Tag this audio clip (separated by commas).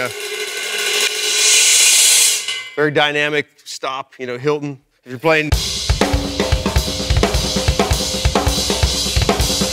Snare drum, Bass drum, Drum kit, Rimshot, Drum, Percussion